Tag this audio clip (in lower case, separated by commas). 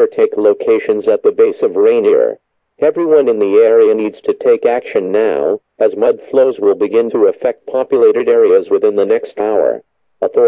speech